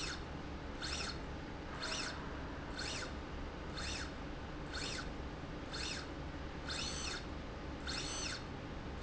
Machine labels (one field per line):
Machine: slide rail